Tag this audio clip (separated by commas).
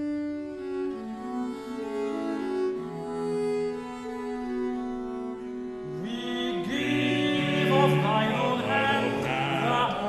Bowed string instrument, Music